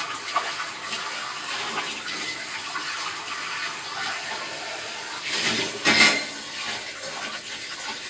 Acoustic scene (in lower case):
kitchen